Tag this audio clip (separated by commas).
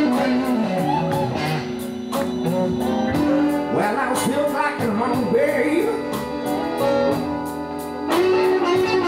Music